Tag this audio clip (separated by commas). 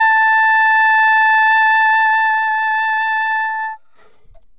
woodwind instrument, Musical instrument, Music